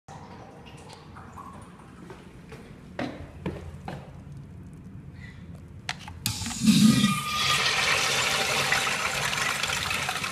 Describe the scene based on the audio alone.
Foot steps followed by a toilet flush